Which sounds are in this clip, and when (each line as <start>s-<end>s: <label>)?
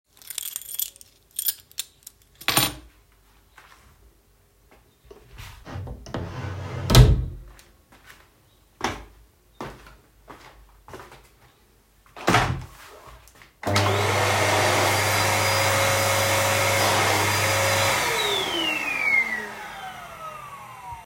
0.0s-3.0s: keys
3.5s-3.9s: footsteps
5.7s-7.8s: door
7.9s-11.3s: footsteps
13.6s-21.1s: vacuum cleaner